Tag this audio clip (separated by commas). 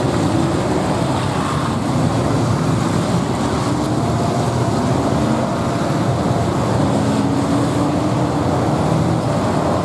Vehicle, auto racing, outside, urban or man-made, Car